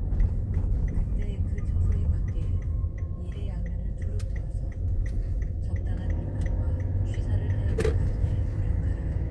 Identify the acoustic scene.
car